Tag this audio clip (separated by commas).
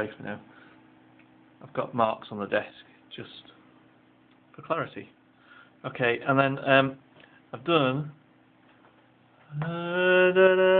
Speech